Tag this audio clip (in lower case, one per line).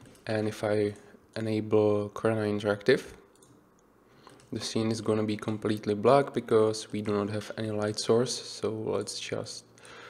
speech